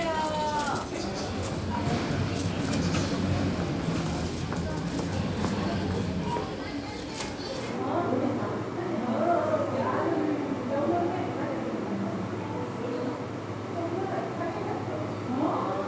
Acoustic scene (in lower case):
crowded indoor space